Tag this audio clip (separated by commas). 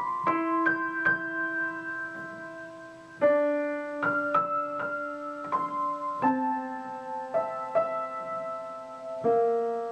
Music